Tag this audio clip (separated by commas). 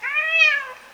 Animal, Cat, pets